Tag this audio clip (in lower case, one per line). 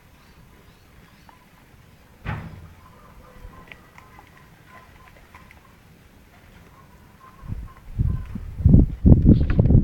speech